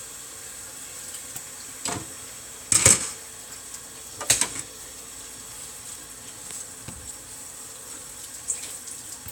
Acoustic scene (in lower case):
kitchen